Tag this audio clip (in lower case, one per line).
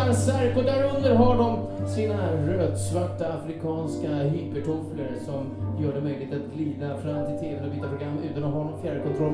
speech
music